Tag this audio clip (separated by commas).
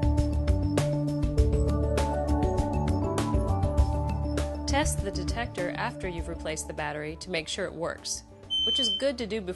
Smoke detector, Speech, Music